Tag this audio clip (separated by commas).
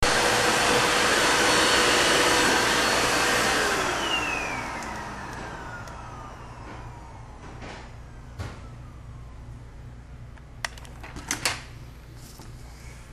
home sounds